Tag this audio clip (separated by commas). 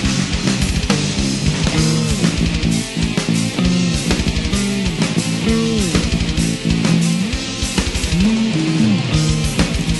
Music